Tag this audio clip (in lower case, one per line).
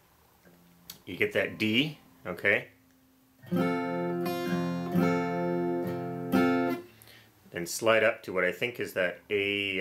plucked string instrument
music
strum
acoustic guitar
musical instrument
speech
guitar